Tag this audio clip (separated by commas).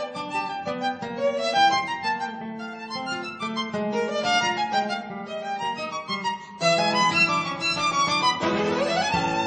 Plucked string instrument, Musical instrument, Music, Guitar